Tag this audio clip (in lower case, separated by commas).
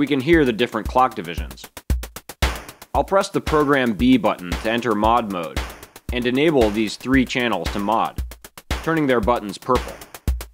music, speech